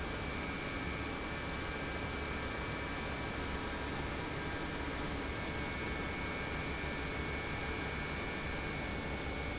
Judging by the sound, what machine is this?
pump